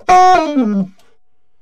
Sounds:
Music, woodwind instrument, Musical instrument

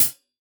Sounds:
Music, Percussion, Hi-hat, Cymbal, Musical instrument

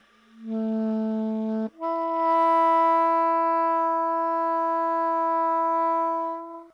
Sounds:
Music, Musical instrument, woodwind instrument

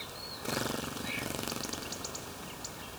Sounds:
Wild animals, Bird vocalization, Animal, Chirp, Bird

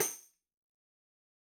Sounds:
Tambourine, Music, Musical instrument, Percussion

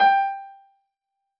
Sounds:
Keyboard (musical), Musical instrument, Music, Piano

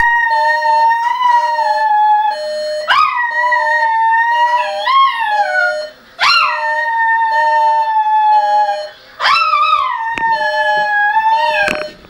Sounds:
Animal, Dog, pets, Alarm

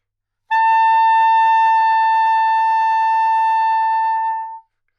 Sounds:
Musical instrument, Music, Wind instrument

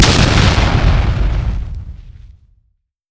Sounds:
Explosion

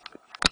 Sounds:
Alarm, Telephone

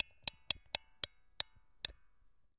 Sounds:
Tick

